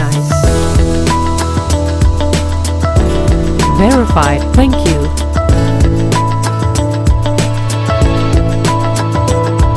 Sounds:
speech, music

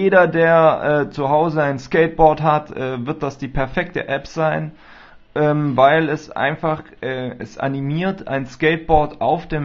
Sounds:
speech

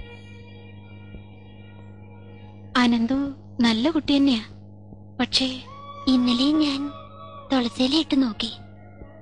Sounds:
music, speech, inside a small room

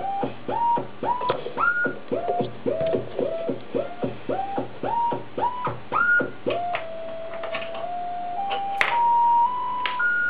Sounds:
music, synthesizer

